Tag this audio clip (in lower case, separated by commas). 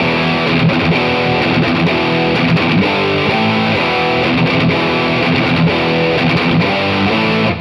plucked string instrument, guitar, musical instrument, music